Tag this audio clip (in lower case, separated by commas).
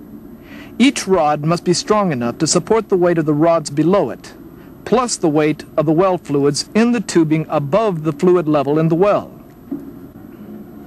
speech